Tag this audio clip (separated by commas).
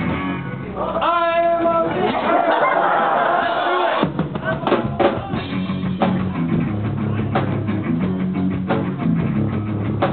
Speech, Music